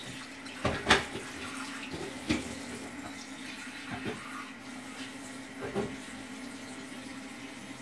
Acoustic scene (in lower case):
kitchen